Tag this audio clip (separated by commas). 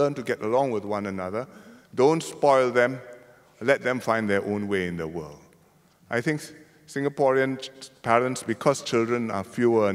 Speech